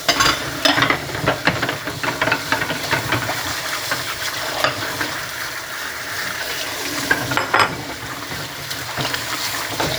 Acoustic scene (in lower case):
kitchen